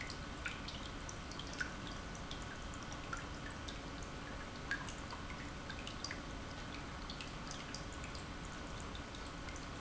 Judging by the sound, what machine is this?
pump